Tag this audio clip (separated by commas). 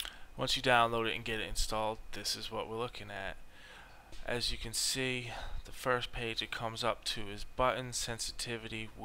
Speech